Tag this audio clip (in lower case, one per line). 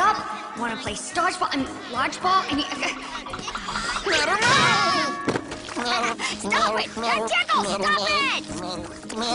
music